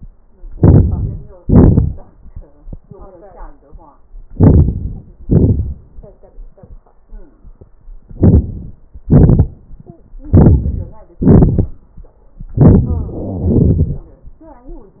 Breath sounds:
0.52-1.40 s: inhalation
1.41-2.29 s: exhalation
4.32-5.20 s: inhalation
5.20-6.08 s: exhalation
8.13-9.01 s: inhalation
9.00-9.83 s: exhalation
10.27-11.22 s: inhalation
11.20-12.44 s: exhalation
12.54-13.45 s: inhalation
12.85-13.48 s: wheeze
13.46-14.37 s: exhalation

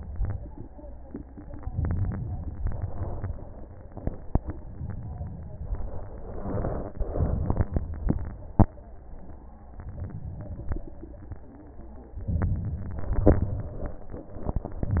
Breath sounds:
1.72-2.59 s: crackles
1.74-2.61 s: inhalation
2.59-3.41 s: crackles
2.61-3.40 s: exhalation
6.17-6.98 s: crackles
6.18-6.98 s: inhalation
7.01-7.82 s: crackles
7.02-7.82 s: exhalation
12.20-13.25 s: inhalation
13.26-14.04 s: exhalation

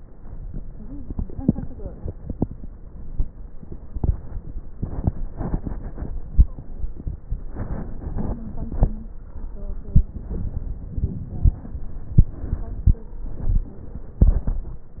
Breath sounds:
6.14-6.96 s: stridor

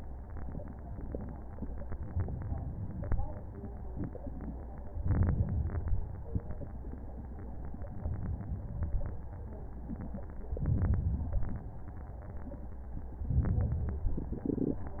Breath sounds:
2.08-3.08 s: inhalation
5.05-6.05 s: inhalation
6.05-6.97 s: exhalation
10.52-11.52 s: inhalation
11.52-12.47 s: exhalation
13.31-14.17 s: inhalation
14.20-15.00 s: exhalation

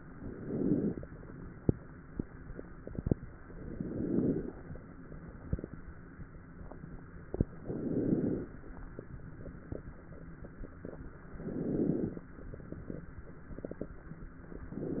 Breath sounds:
0.00-1.05 s: inhalation
3.51-4.57 s: inhalation
7.58-8.51 s: inhalation
11.29-12.22 s: inhalation
14.74-15.00 s: inhalation

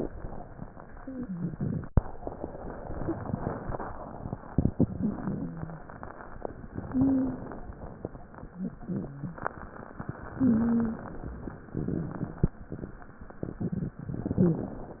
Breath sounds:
0.98-1.81 s: wheeze
4.72-5.72 s: inhalation
4.72-5.72 s: wheeze
6.73-7.73 s: inhalation
6.87-7.69 s: wheeze
8.43-9.52 s: wheeze
10.30-11.29 s: inhalation
10.34-11.06 s: wheeze
11.72-12.57 s: exhalation
11.72-12.57 s: crackles
14.01-15.00 s: inhalation
14.31-14.72 s: wheeze

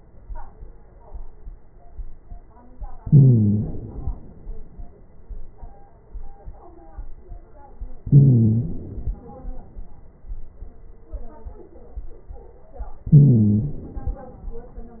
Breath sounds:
2.98-3.71 s: stridor
3.01-4.38 s: inhalation
8.04-8.78 s: stridor
8.04-9.62 s: inhalation
13.11-13.88 s: stridor
13.11-14.68 s: inhalation

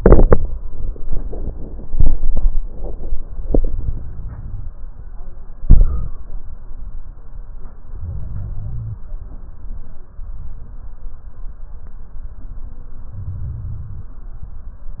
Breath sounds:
3.48-4.72 s: inhalation
7.90-9.01 s: inhalation
13.14-14.12 s: inhalation

